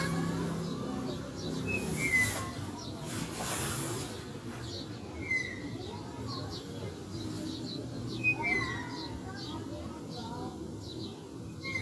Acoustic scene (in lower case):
residential area